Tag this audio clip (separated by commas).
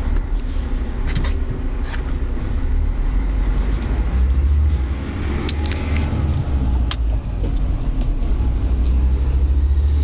Vehicle